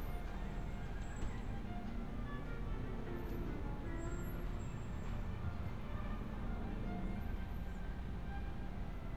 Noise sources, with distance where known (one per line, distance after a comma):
medium-sounding engine, far
music from a fixed source, far